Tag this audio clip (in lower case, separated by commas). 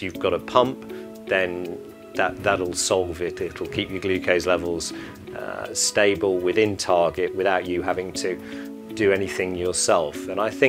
speech, music